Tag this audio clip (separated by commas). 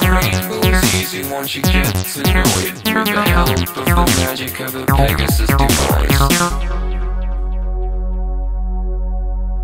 Music, Dubstep, Electronic music